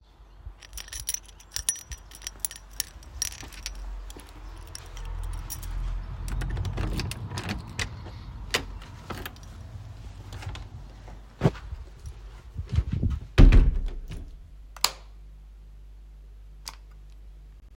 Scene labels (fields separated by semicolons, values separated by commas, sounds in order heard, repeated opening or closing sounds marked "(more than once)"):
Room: hallway; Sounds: keys, door (more than once), light switch